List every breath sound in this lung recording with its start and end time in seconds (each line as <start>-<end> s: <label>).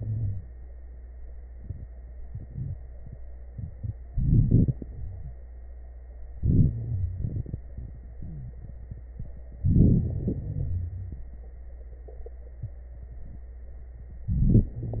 0.00-0.45 s: wheeze
4.13-4.75 s: inhalation
4.13-4.75 s: crackles
4.78-5.34 s: exhalation
4.78-5.34 s: wheeze
6.35-6.73 s: inhalation
6.73-7.38 s: wheeze
6.73-7.62 s: exhalation
8.20-8.99 s: wheeze
9.66-10.04 s: inhalation
10.03-11.29 s: exhalation
10.03-11.29 s: wheeze
14.28-14.70 s: inhalation
14.28-14.70 s: crackles
14.70-15.00 s: exhalation
14.70-15.00 s: wheeze